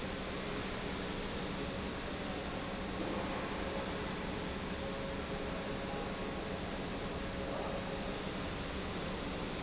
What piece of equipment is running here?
pump